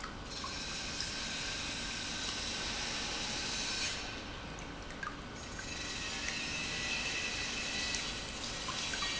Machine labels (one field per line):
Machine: pump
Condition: normal